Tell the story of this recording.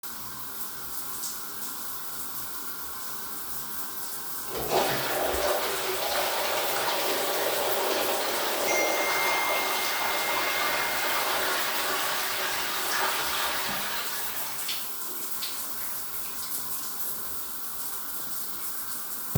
taking a shower in the bathroom while someone flushing the toilet and getting a phone notification